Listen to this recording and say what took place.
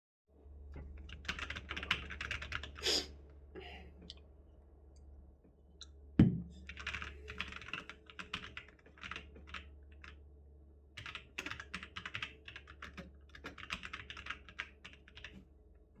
I was typing a message on the keyboard and loudly inhaled with my nose